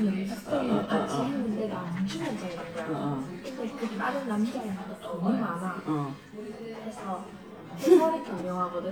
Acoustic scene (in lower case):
crowded indoor space